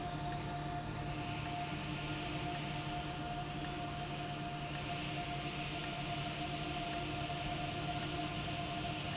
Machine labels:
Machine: valve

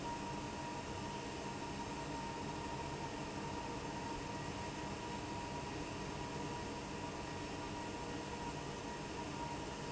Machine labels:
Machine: fan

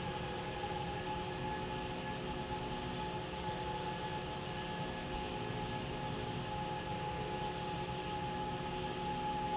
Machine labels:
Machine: slide rail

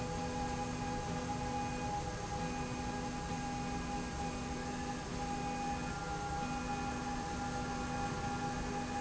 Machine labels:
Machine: slide rail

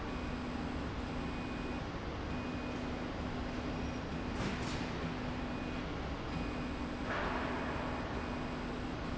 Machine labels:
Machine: slide rail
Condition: normal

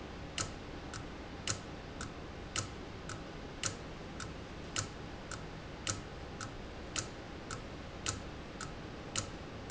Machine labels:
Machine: valve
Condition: abnormal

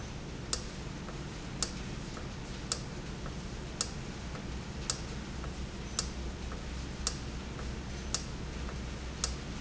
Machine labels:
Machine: valve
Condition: normal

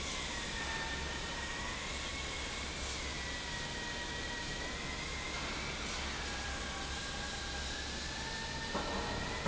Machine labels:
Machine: fan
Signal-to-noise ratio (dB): -6 dB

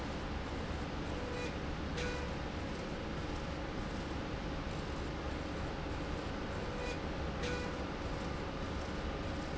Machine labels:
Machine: slide rail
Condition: normal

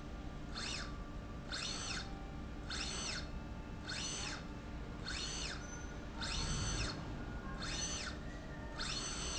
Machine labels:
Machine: slide rail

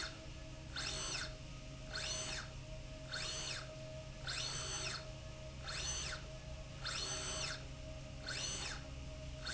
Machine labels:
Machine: slide rail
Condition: normal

